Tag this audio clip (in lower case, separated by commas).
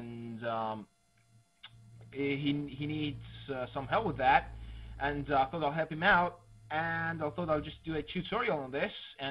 speech